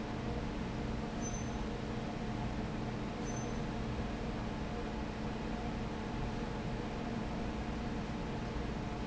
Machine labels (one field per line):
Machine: fan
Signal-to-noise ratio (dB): -6 dB